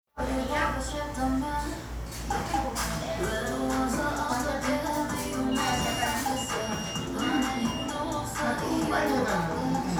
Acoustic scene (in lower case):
cafe